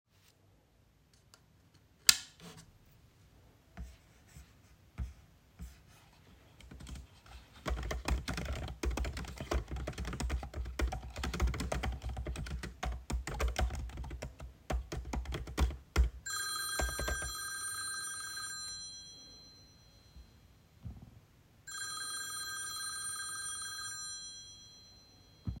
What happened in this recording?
I switched on the light, started to write an email and then my mobile phone rang.